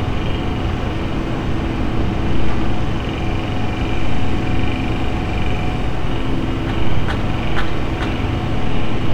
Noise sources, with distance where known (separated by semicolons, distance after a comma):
unidentified impact machinery, far